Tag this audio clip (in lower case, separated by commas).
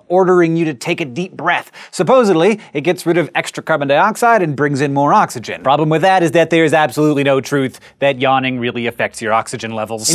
speech